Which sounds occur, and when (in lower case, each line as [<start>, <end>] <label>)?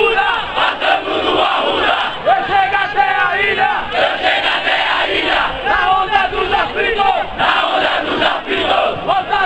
[0.00, 9.45] background noise
[0.00, 9.45] battle cry